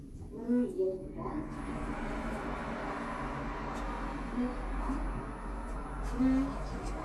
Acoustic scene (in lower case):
elevator